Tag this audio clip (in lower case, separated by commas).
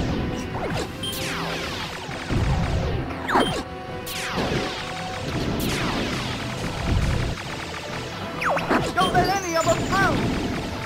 speech, music